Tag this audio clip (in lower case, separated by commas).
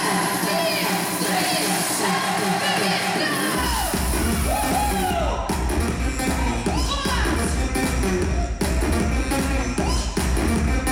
crowd